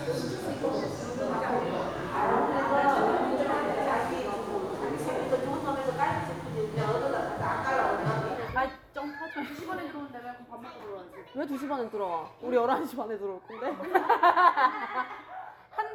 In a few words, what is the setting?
crowded indoor space